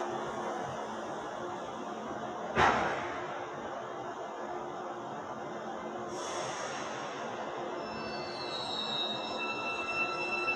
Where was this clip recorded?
in a subway station